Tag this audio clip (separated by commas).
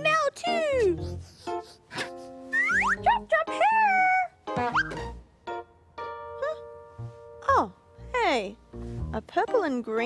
Music, inside a large room or hall, Speech